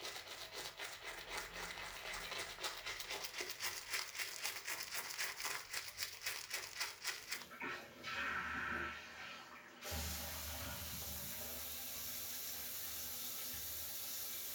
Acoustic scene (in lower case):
restroom